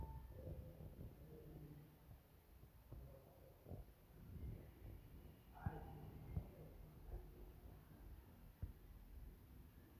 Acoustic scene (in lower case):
elevator